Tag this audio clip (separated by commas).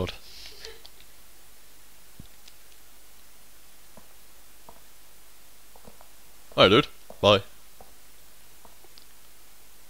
Speech